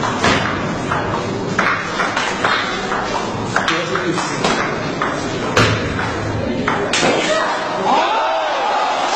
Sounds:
playing table tennis

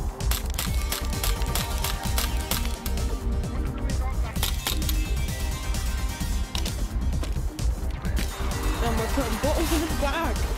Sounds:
speech
music

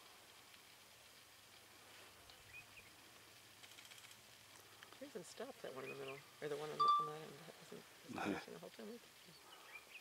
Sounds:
speech
animal
outside, rural or natural

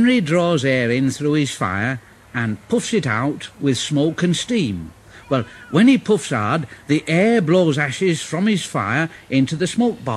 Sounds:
speech

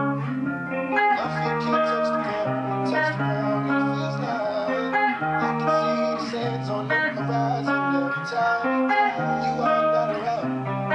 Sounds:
music
musical instrument
plucked string instrument
guitar
strum

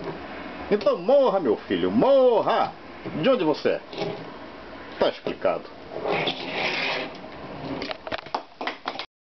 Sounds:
speech

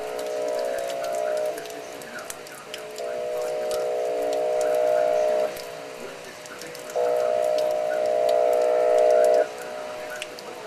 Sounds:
siren
speech

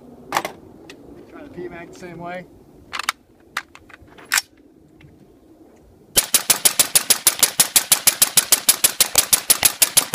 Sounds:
machine gun shooting
speech
machine gun

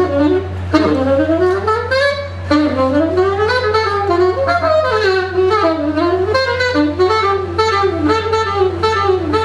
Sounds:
music
inside a large room or hall

